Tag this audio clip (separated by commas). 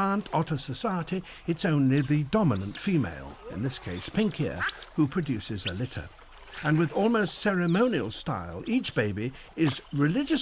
otter growling